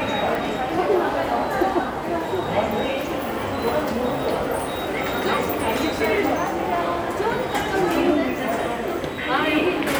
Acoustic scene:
subway station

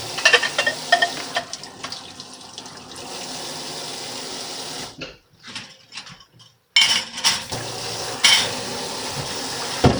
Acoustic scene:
kitchen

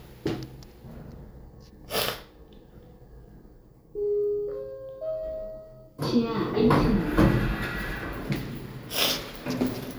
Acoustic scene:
elevator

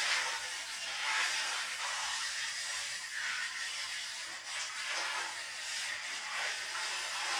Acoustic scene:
restroom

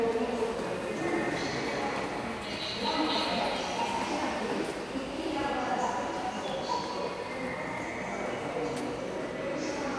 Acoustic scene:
subway station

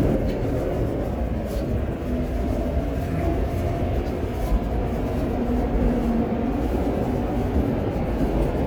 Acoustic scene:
subway train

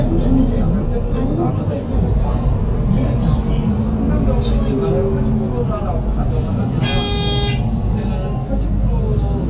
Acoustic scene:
bus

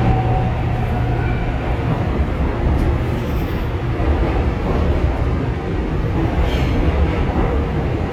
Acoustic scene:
subway train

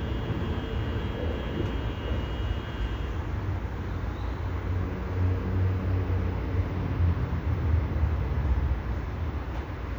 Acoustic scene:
residential area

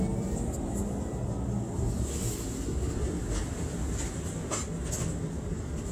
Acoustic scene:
bus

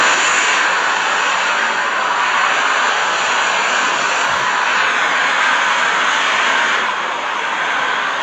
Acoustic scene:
street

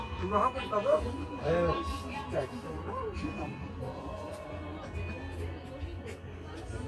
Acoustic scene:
park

